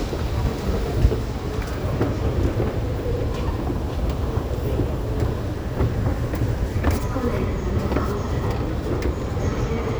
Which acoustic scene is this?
subway station